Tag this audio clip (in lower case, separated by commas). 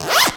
home sounds, zipper (clothing)